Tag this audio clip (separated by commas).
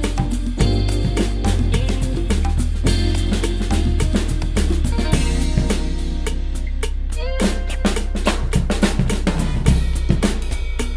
Hi-hat, Rimshot, Percussion, Drum, Drum kit, Cymbal, Bass drum, Snare drum